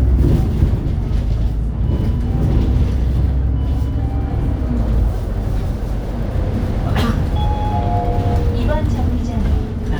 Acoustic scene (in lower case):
bus